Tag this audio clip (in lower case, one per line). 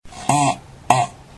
fart